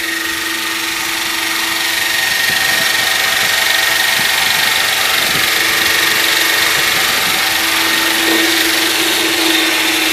A helicopter is buzzing